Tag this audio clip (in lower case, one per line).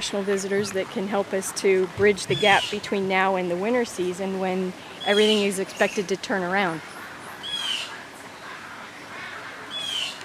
speech
chirp
animal
bird